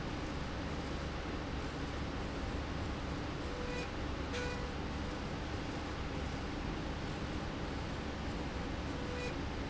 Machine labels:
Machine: slide rail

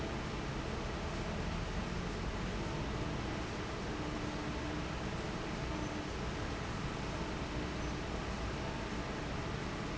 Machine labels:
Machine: fan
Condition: normal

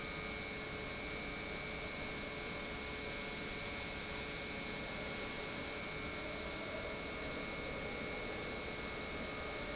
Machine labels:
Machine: pump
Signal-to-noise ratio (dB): 0 dB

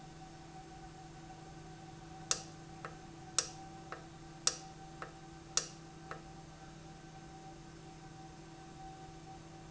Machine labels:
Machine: valve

